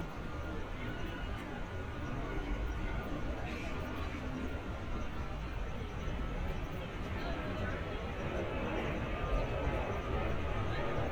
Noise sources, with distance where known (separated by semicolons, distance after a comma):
medium-sounding engine, far; person or small group talking, far